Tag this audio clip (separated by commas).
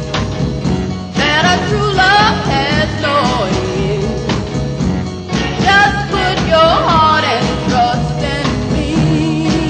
Music